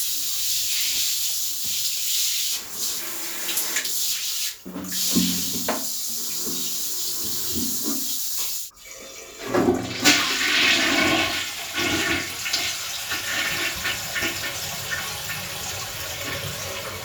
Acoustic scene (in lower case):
restroom